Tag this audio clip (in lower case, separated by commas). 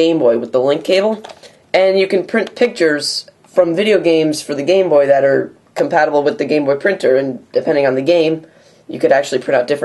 speech